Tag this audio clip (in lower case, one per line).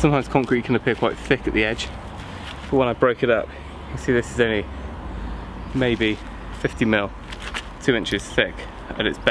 speech